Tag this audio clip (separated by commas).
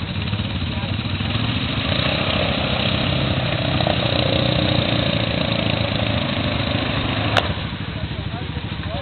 Speech